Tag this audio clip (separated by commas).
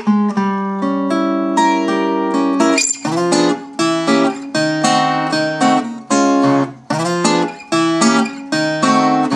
Strum, Guitar, Acoustic guitar, Music, Plucked string instrument, Blues, Musical instrument, playing acoustic guitar